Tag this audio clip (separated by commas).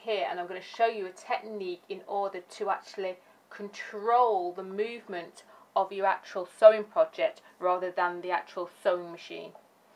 Speech